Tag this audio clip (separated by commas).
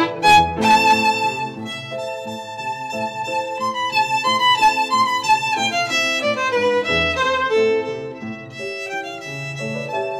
Musical instrument, Music, fiddle